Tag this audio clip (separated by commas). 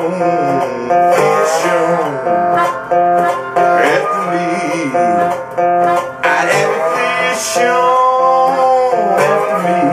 Musical instrument, Plucked string instrument, Music, Acoustic guitar, Guitar